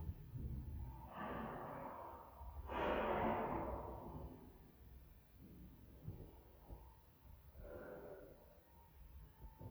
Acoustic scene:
elevator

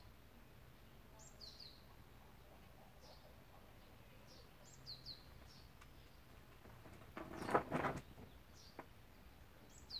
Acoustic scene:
park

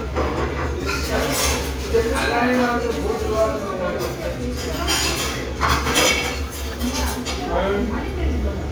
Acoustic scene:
restaurant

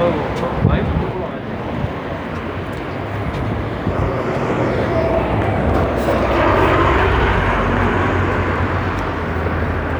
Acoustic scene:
street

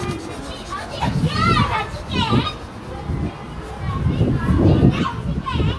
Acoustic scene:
park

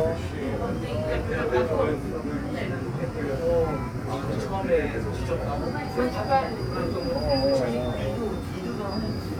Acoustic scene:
subway train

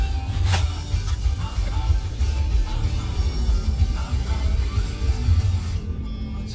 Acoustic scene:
car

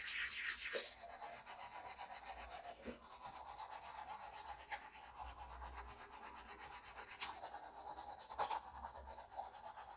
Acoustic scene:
restroom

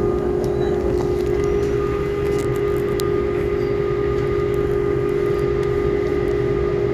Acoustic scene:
subway train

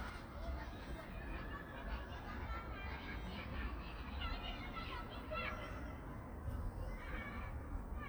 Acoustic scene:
park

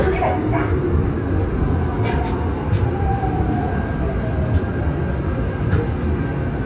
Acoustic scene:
subway train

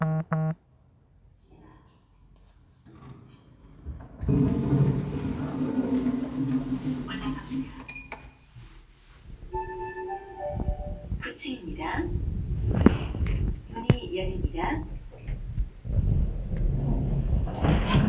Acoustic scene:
elevator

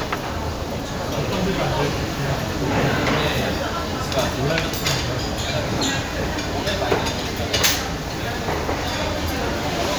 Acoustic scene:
crowded indoor space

